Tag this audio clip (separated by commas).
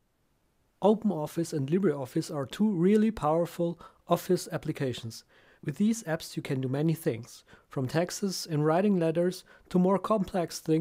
Speech